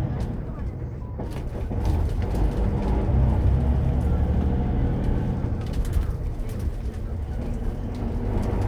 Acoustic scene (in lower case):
bus